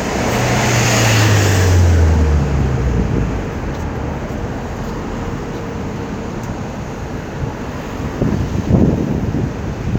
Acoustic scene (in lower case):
street